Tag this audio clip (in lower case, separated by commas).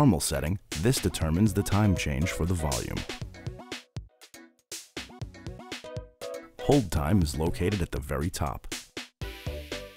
speech, sampler, music